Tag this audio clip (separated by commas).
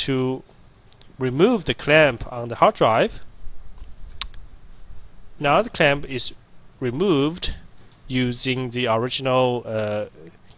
Speech